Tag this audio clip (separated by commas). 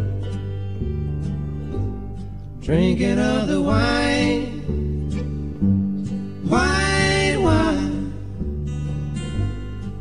Music